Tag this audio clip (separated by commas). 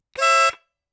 Harmonica, Musical instrument, Music